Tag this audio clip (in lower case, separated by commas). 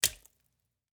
liquid, splatter